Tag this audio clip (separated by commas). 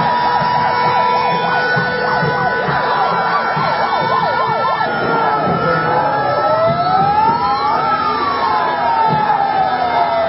Vehicle